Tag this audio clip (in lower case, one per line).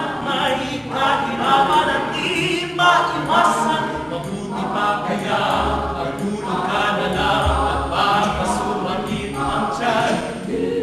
music